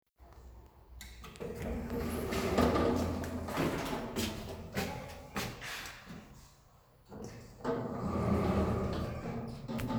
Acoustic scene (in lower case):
elevator